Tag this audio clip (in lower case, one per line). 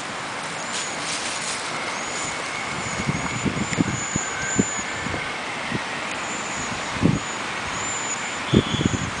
animal